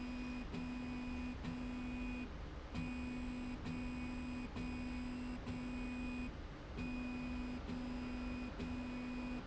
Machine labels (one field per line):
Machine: slide rail